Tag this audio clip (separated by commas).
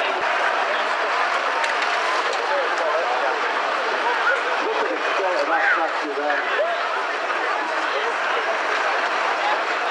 Speech